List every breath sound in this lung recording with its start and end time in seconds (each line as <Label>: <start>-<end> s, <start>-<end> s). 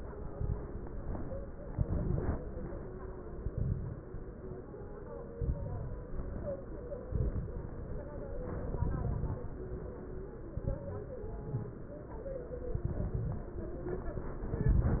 Exhalation: 0.17-0.64 s, 1.69-2.39 s, 3.38-4.08 s, 5.36-6.06 s, 7.05-7.75 s, 8.61-9.44 s, 10.58-10.97 s, 12.71-13.55 s, 14.50-15.00 s
Crackles: 0.17-0.64 s, 1.69-2.39 s, 3.38-4.08 s, 5.36-6.06 s, 7.05-7.75 s, 8.61-9.44 s, 10.58-10.97 s, 12.71-13.55 s, 14.50-15.00 s